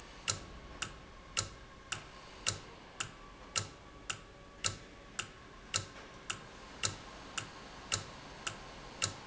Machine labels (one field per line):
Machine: valve